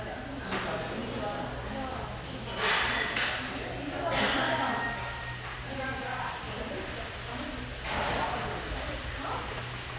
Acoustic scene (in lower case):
restaurant